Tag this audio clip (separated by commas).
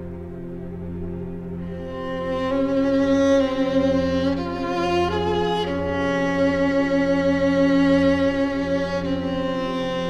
Cello, Soundtrack music, Music